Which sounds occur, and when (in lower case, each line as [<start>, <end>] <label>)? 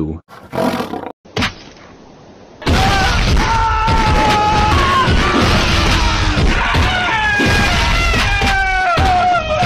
[0.00, 0.19] man speaking
[0.25, 1.07] roar
[1.22, 2.62] mechanisms
[1.31, 1.90] generic impact sounds
[2.61, 3.61] whack
[2.61, 9.65] screaming
[3.84, 6.91] whack
[7.38, 8.59] whack
[8.83, 9.65] whack